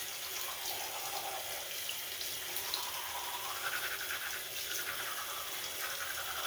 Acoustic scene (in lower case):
restroom